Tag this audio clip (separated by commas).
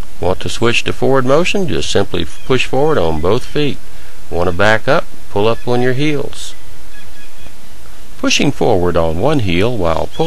Speech